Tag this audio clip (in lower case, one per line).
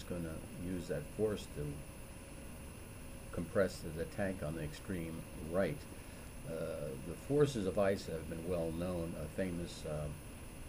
speech